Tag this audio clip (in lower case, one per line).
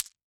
glass